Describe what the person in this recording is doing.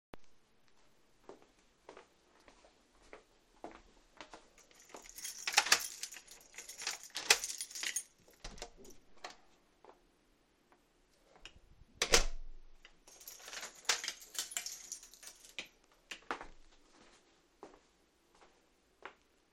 I walked through the kitchen to my apartment door and unlocked it twice with the key already in the keyhole. I opened the door, looked outside and then closed it again. I locked the door and walked back into the kitchen.